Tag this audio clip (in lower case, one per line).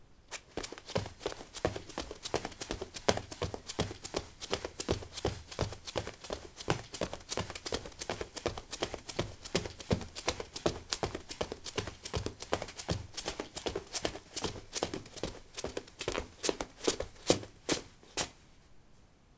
run